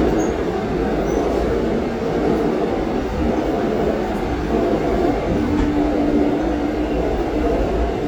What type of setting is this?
subway train